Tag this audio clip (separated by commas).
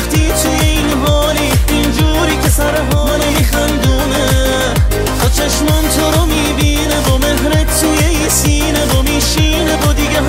Music